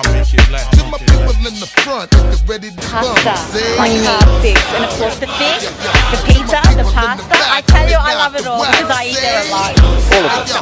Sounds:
speech
music
hip hop music

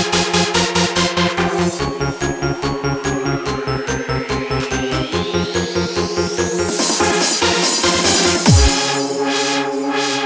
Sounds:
music

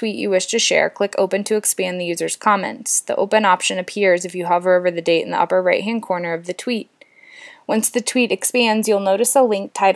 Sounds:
speech

